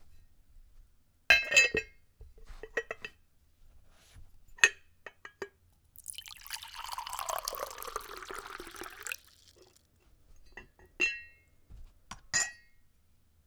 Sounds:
liquid

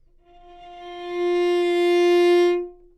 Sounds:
musical instrument, bowed string instrument, music

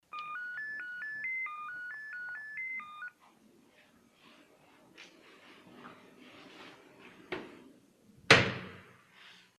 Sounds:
slam, door, domestic sounds

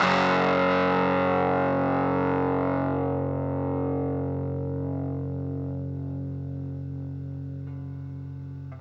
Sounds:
music, guitar, plucked string instrument, musical instrument

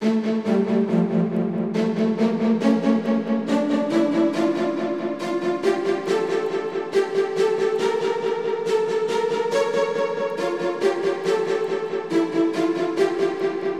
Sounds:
musical instrument, music

